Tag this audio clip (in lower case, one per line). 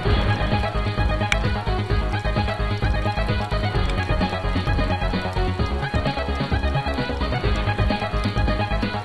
music